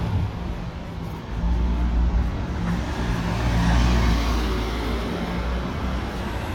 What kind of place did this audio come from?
residential area